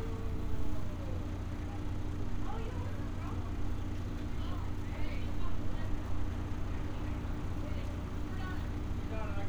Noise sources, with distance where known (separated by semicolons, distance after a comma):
unidentified impact machinery, far; unidentified human voice